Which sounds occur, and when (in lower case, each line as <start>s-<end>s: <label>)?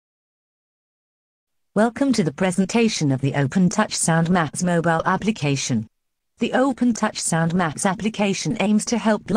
1.7s-5.9s: woman speaking
6.4s-9.2s: woman speaking
9.3s-9.3s: woman speaking